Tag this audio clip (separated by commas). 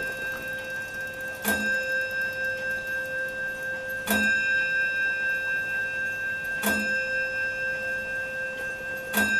Tick-tock